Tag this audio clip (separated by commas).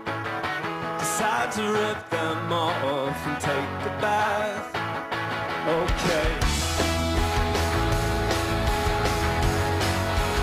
Music